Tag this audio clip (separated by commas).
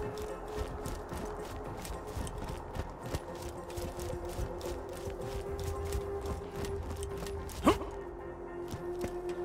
Run, Music